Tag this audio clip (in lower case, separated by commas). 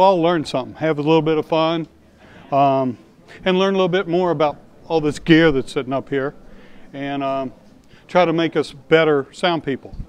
speech